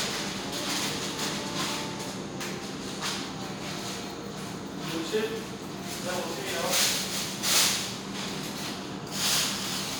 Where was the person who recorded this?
in a restaurant